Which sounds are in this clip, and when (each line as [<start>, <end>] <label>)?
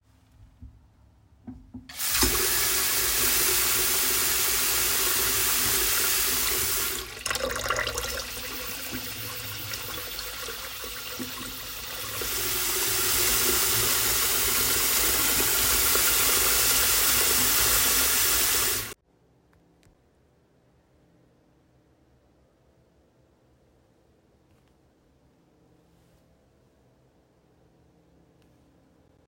[1.71, 19.04] running water